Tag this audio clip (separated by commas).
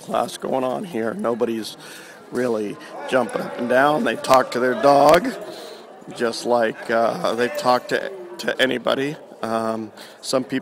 Speech